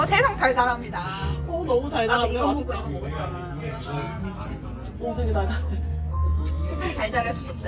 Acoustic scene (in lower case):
crowded indoor space